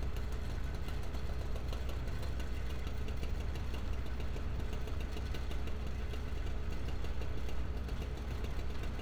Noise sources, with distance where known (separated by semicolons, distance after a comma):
engine of unclear size, near